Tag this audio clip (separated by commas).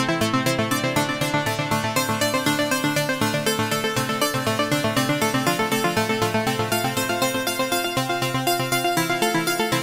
Sampler, Music